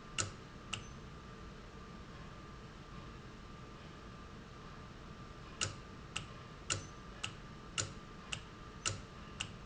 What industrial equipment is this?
valve